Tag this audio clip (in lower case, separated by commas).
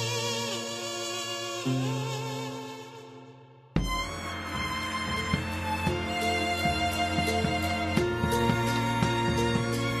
middle eastern music, music